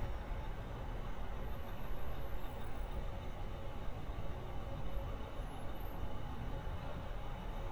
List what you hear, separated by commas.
large-sounding engine